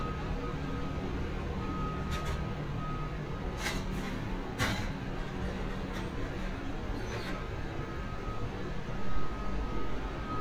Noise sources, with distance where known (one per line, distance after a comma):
unidentified alert signal